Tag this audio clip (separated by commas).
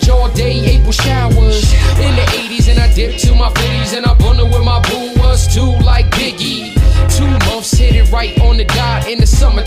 Rapping